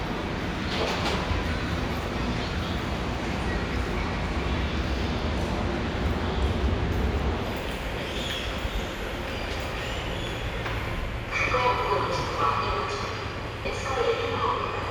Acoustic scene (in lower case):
subway station